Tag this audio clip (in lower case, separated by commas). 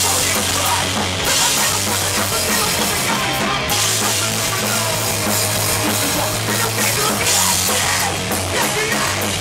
music, singing